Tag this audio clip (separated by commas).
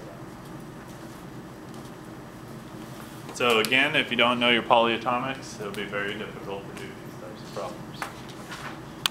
Speech